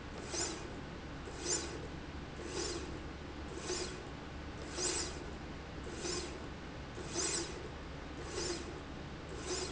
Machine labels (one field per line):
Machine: slide rail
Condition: normal